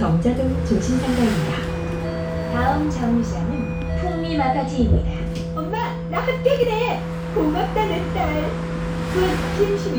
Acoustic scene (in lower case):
bus